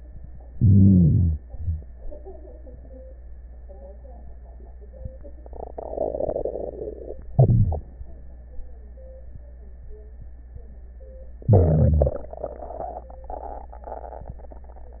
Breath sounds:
0.52-1.41 s: inhalation
7.31-7.84 s: inhalation
7.31-7.84 s: crackles
11.44-12.19 s: inhalation

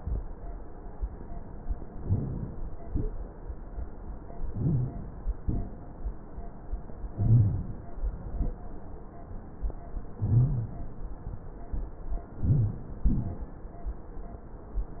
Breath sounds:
1.90-2.71 s: inhalation
4.56-5.36 s: inhalation
5.43-5.98 s: exhalation
7.12-7.92 s: inhalation
7.98-8.53 s: exhalation
10.20-11.00 s: inhalation
12.35-12.90 s: inhalation
13.01-13.57 s: exhalation

